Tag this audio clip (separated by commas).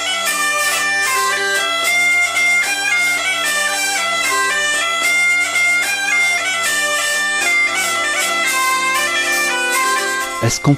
Musical instrument, Bagpipes, Music, playing bagpipes